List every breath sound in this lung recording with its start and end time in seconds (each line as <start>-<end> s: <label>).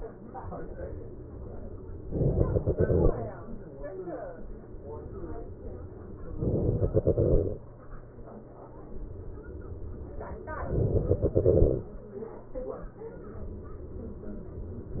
2.14-3.15 s: inhalation
6.39-7.62 s: inhalation
10.67-11.90 s: inhalation